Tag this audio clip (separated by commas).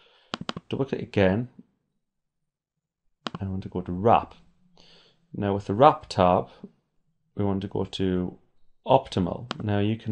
Speech